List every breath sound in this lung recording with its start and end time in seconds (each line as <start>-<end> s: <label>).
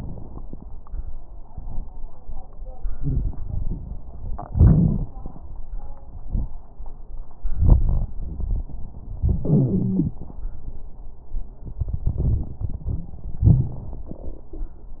2.90-3.28 s: wheeze
2.90-4.09 s: exhalation
4.45-5.29 s: inhalation
4.45-5.29 s: crackles
7.44-9.14 s: exhalation
7.44-9.14 s: crackles
9.19-10.26 s: inhalation
9.41-10.21 s: wheeze
11.64-13.18 s: exhalation
11.64-13.18 s: crackles
13.40-14.17 s: inhalation
13.40-14.17 s: crackles